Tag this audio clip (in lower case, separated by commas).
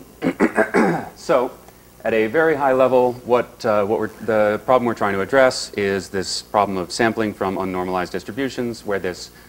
speech